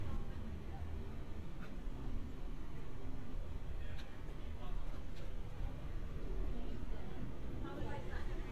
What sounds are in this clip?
person or small group talking